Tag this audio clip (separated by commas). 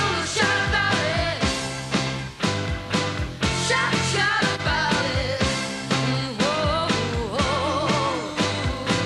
Music